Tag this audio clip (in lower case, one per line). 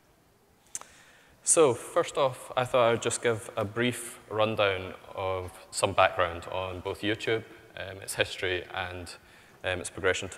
speech